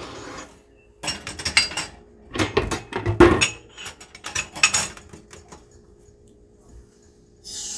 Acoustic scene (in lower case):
kitchen